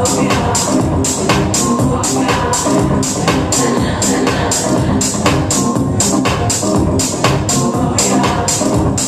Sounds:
Music, Disco, Electronic music, Techno

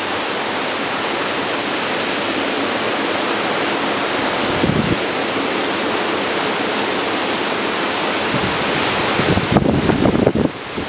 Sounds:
White noise, waterfall burbling, Waterfall

